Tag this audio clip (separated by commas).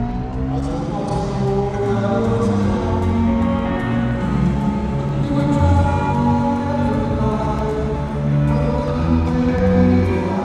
Music